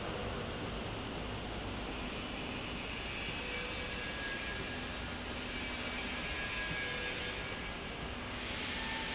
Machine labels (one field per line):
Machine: slide rail